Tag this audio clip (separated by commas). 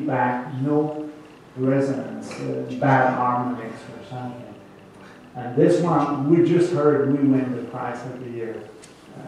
Speech, Guitar, Musical instrument, Plucked string instrument, Music, Strum